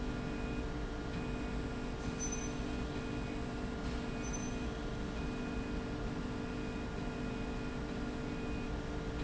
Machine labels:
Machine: slide rail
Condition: normal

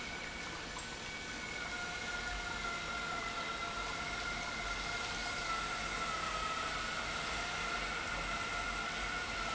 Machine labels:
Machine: pump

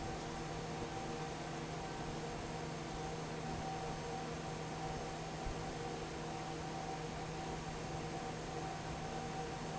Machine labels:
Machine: fan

